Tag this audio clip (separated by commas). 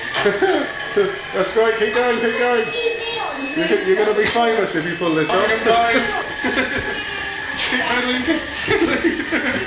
Speech, Bicycle